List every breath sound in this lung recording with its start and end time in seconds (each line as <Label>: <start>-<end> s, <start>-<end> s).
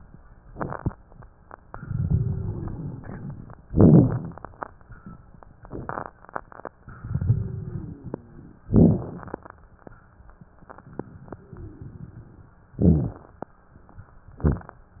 Inhalation: 0.43-1.66 s, 3.64-4.74 s, 8.61-10.42 s, 12.76-14.23 s
Exhalation: 1.67-3.69 s, 4.74-8.62 s, 10.44-12.72 s
Wheeze: 2.05-3.68 s, 7.22-8.58 s, 11.12-12.57 s
Crackles: 0.39-1.65 s, 3.64-4.74 s, 4.76-6.75 s, 8.65-10.40 s, 12.76-14.23 s